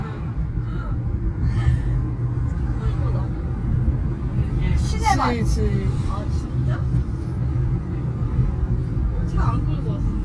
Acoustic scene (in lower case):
car